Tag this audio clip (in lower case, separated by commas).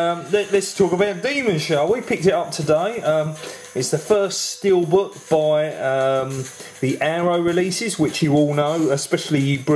music, speech